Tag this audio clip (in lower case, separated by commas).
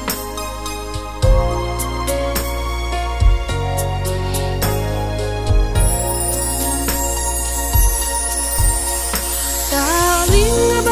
music, theme music